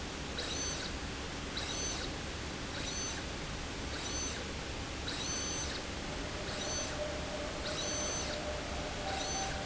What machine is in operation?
slide rail